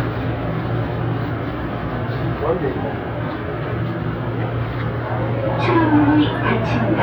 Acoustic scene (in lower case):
subway train